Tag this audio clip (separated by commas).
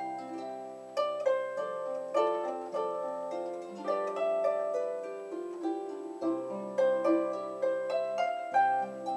playing harp